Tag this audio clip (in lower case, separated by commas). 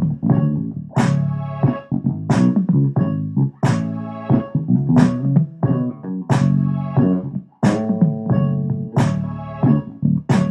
musical instrument, music, plucked string instrument, bass guitar